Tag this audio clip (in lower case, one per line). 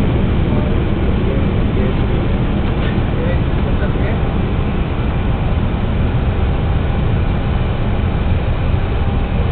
speech
vehicle